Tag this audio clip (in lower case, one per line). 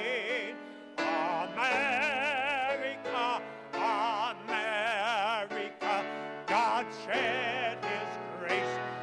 music